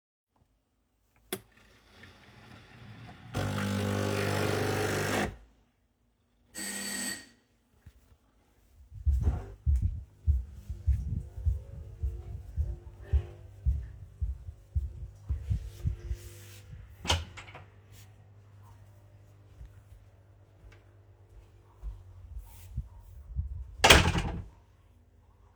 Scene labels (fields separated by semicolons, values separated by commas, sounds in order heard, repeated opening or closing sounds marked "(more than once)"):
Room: kitchen, living room; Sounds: coffee machine, bell ringing, footsteps, door (more than once)